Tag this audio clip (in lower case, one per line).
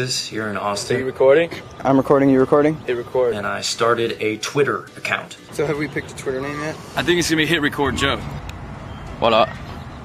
speech